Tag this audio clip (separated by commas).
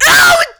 Screaming, Human voice